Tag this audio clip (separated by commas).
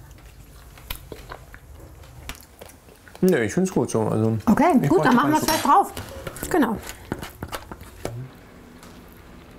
Speech